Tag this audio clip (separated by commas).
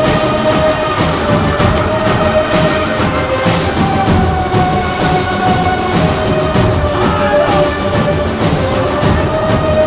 Music, Speech